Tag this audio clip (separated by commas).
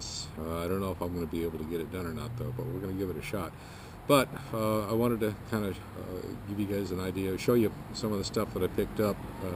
Speech